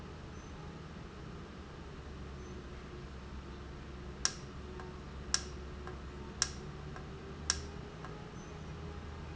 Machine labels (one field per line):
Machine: valve